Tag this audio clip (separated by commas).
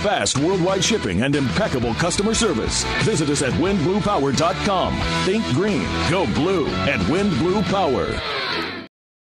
Music, Speech